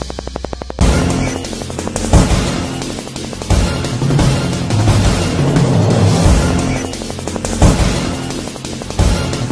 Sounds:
soundtrack music, music

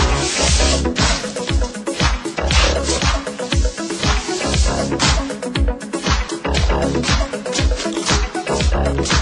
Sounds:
music

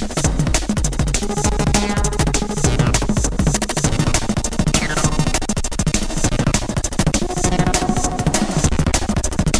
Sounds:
music, musical instrument

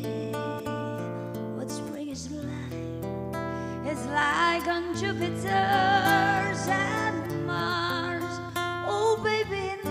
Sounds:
jazz, music

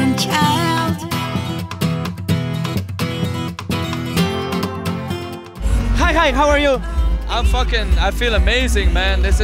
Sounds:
music, speech

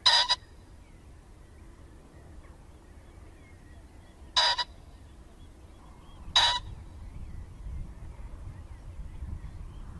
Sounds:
pheasant crowing

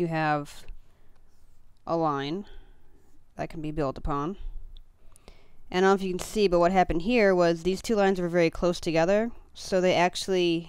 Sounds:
speech

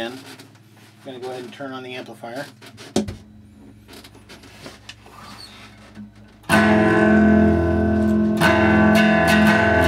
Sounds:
musical instrument, strum, guitar, music, plucked string instrument, inside a small room, bass guitar, speech

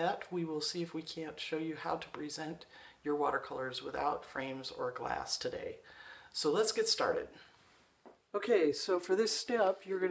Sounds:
speech

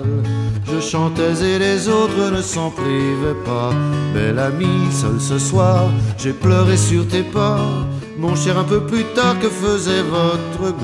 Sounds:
people humming

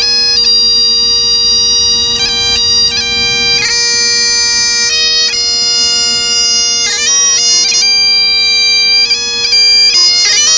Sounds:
music, bagpipes

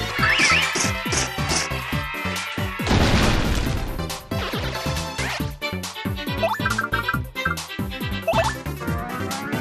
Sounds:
music

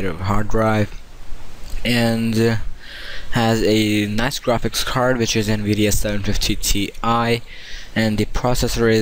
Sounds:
speech

